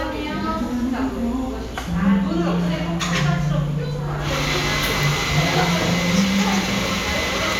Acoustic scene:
cafe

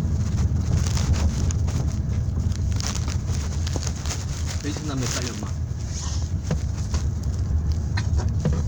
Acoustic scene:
car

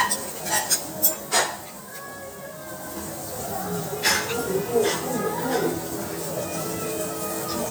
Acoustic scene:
restaurant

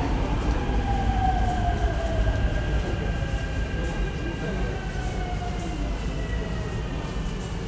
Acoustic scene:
subway station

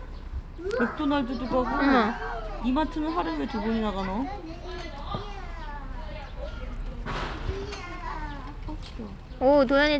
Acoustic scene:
park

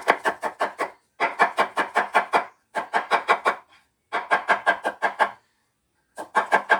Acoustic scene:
kitchen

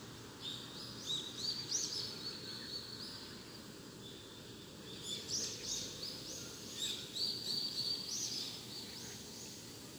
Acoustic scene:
park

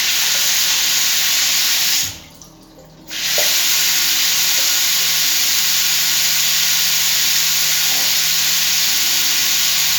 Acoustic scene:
restroom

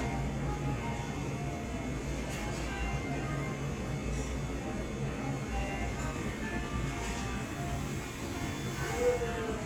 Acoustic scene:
cafe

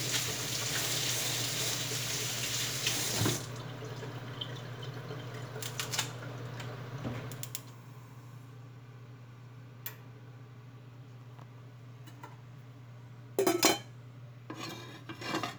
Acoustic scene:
kitchen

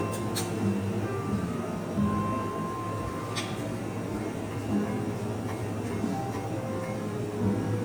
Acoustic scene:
cafe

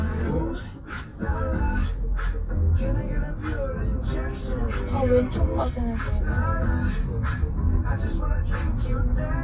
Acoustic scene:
car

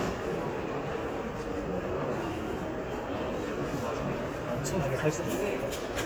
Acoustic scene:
crowded indoor space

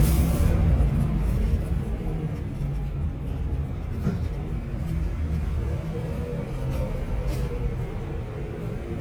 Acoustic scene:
bus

